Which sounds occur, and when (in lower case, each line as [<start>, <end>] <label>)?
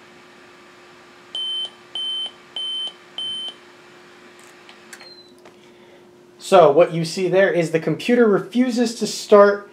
[0.00, 9.72] mechanisms
[1.31, 1.65] beep
[1.90, 2.34] beep
[2.52, 2.91] beep
[3.14, 3.52] beep
[4.62, 5.04] generic impact sounds
[4.93, 5.31] brief tone
[5.30, 5.56] generic impact sounds
[5.46, 6.09] breathing
[6.30, 9.60] man speaking
[9.62, 9.72] breathing